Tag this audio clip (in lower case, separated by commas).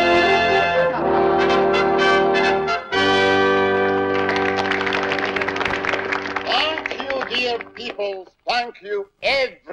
speech, narration, music